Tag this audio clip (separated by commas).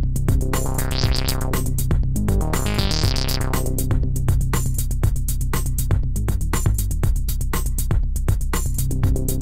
Music